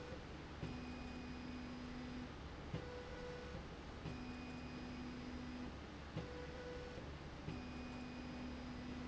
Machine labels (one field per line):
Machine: slide rail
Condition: normal